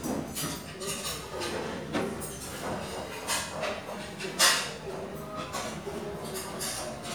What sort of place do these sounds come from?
restaurant